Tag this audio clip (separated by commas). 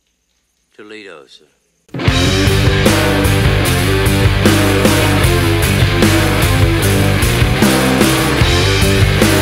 Music, Speech